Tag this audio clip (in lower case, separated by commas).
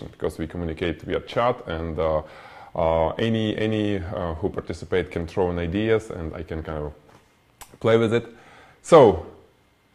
speech